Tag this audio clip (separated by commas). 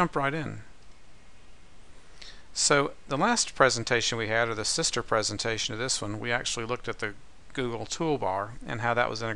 Speech